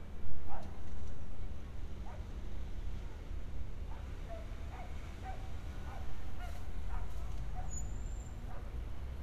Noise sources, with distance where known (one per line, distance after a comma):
dog barking or whining, far